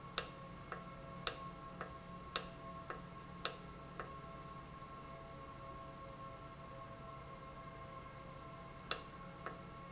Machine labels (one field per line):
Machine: valve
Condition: normal